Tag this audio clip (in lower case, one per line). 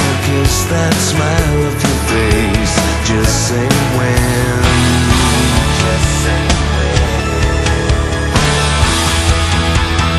music